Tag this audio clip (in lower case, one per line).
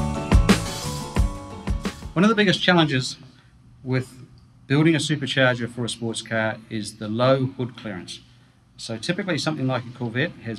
music
speech